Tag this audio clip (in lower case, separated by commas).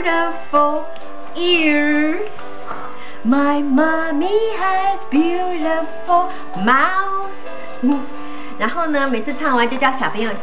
music, speech